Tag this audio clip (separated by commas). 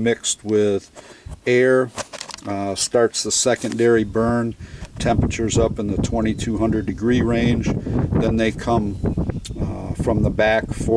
Speech